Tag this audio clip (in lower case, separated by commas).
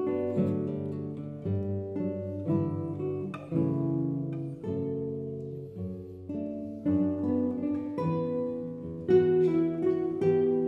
musical instrument, strum, music, guitar, acoustic guitar